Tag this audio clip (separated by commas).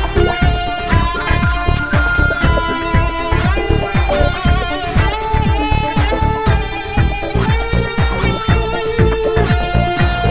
Musical instrument, Music, Electric guitar, Guitar